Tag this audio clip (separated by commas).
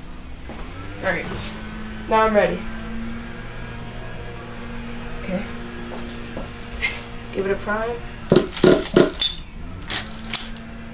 inside a small room, Car, Speech